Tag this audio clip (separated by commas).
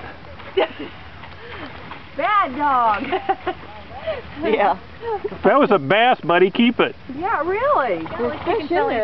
Speech